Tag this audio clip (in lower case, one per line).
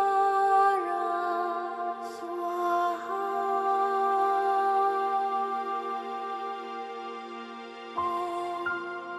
mantra
music